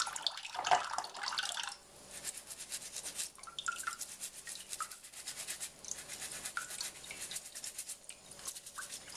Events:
[0.00, 1.70] drip
[0.00, 9.15] background noise
[2.07, 3.30] scratch
[3.32, 4.03] drip
[3.62, 9.00] scratch
[4.35, 4.99] drip
[6.47, 7.21] drip
[8.02, 8.52] drip
[8.72, 8.85] drip
[9.09, 9.15] drip

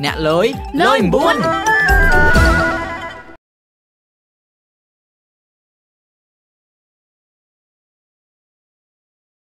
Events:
[0.00, 0.55] male speech
[0.00, 1.35] conversation
[0.00, 3.35] music
[0.68, 1.45] male speech
[0.81, 1.34] woman speaking

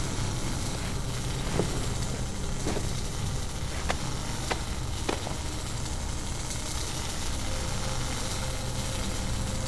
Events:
[0.01, 9.65] video game sound
[1.43, 1.63] generic impact sounds
[2.56, 2.75] generic impact sounds
[3.11, 9.65] music
[3.80, 3.99] generic impact sounds
[4.46, 4.62] generic impact sounds
[5.07, 5.33] generic impact sounds

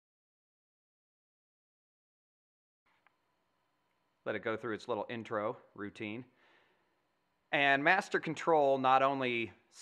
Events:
[2.82, 9.81] background noise
[4.18, 5.49] man speaking
[5.69, 6.27] man speaking
[6.32, 6.79] breathing
[7.55, 9.44] man speaking
[9.68, 9.81] man speaking

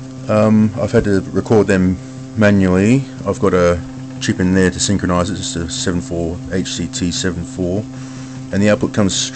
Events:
[0.00, 9.35] mechanisms
[0.07, 0.16] clicking
[0.30, 0.67] man speaking
[0.77, 1.24] man speaking
[1.35, 1.95] man speaking
[2.44, 3.02] man speaking
[3.26, 3.81] man speaking
[4.24, 6.35] man speaking
[6.54, 7.87] man speaking
[7.89, 8.41] breathing
[8.54, 9.35] man speaking

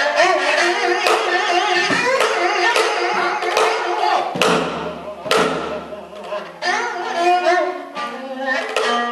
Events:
[0.00, 9.11] music

